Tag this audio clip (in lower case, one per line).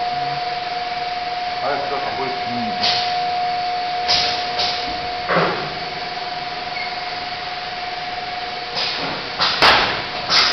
speech